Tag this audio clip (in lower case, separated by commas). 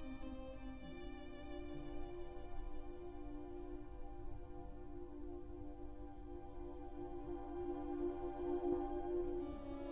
orchestra, fiddle, music, musical instrument